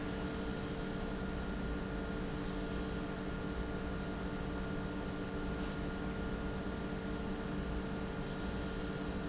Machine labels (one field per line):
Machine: pump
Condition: normal